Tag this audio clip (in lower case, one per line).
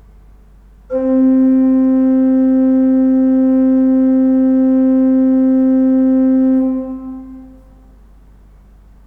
musical instrument
keyboard (musical)
music
organ